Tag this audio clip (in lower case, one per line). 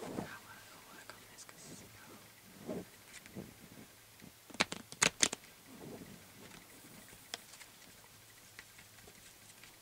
speech
shuffling cards
inside a small room